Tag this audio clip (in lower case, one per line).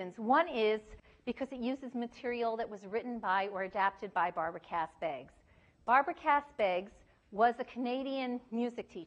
speech